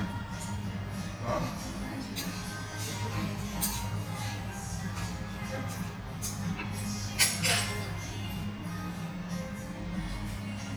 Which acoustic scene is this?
restaurant